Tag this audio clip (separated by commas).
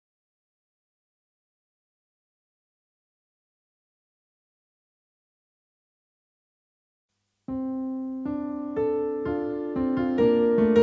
Musical instrument, Music, Keyboard (musical), Piano, Electric piano